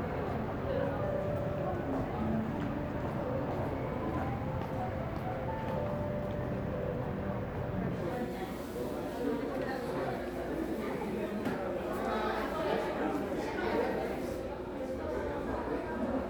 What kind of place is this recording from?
crowded indoor space